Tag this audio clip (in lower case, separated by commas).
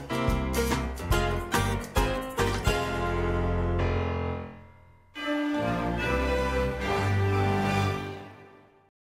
television, music